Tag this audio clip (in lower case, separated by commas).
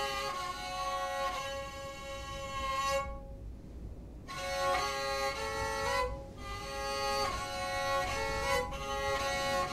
music, musical instrument